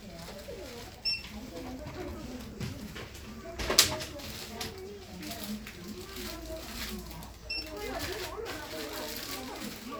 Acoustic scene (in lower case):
crowded indoor space